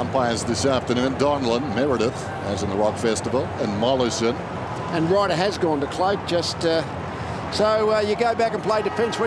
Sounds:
Speech

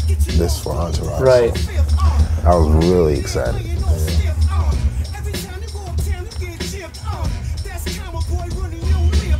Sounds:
Music, Speech, Musical instrument

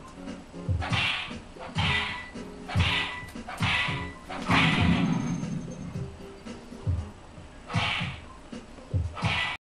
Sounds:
Music

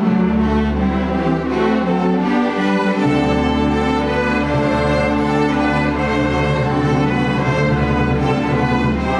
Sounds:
Music, Orchestra

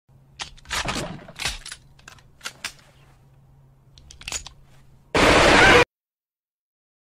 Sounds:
Gunshot, Machine gun

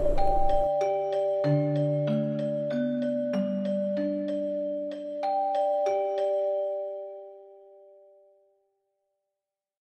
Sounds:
Music

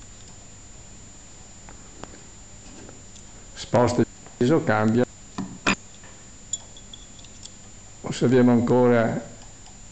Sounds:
Speech

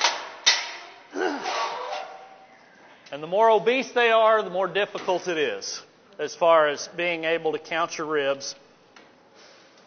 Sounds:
Speech

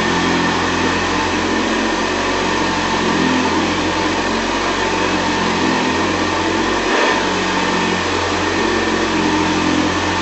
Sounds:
Medium engine (mid frequency), Vacuum cleaner

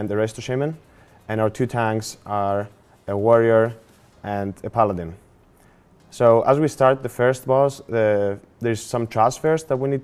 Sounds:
Speech

